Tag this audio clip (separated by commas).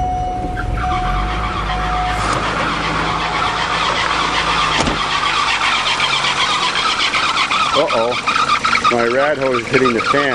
Speech, Vehicle, Car